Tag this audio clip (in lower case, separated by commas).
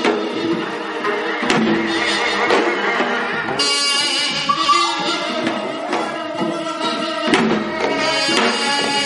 orchestra, traditional music, music